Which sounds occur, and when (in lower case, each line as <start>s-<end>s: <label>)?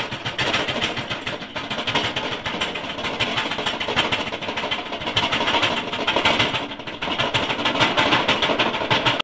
0.0s-9.2s: clatter